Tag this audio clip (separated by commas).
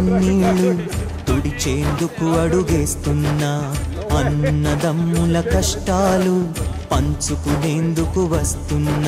Speech, Music